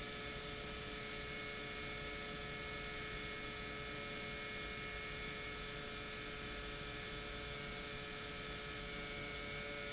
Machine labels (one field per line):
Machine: pump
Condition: normal